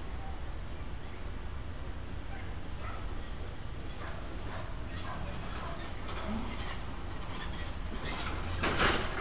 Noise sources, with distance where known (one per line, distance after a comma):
dog barking or whining, far